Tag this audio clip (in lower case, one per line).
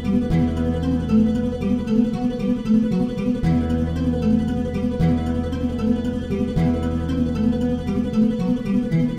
musical instrument
strum
plucked string instrument
music
acoustic guitar
guitar